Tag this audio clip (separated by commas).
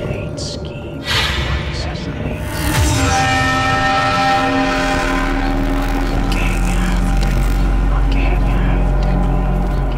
Music, Speech